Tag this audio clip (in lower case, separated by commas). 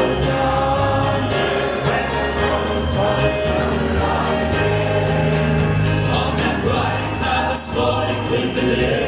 gospel music, traditional music, music